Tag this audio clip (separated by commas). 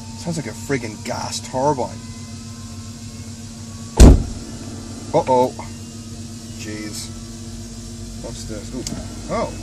Speech, Engine, Vehicle, Car